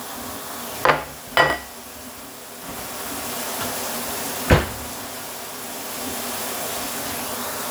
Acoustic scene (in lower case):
kitchen